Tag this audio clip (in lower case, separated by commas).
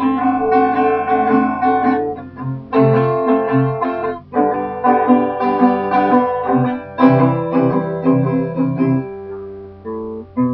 music, guitar, musical instrument